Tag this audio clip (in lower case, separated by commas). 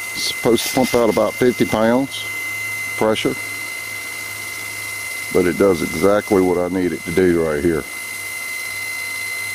pumping water